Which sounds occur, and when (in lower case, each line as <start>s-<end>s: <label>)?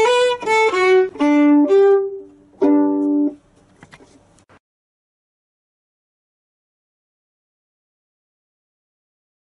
0.0s-2.2s: music
0.0s-4.6s: background noise
0.3s-0.4s: generic impact sounds
2.6s-3.3s: music
3.7s-3.9s: generic impact sounds
3.9s-4.1s: surface contact
4.3s-4.4s: tick